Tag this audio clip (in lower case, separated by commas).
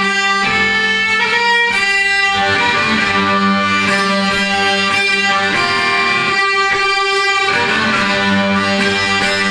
music, musical instrument, violin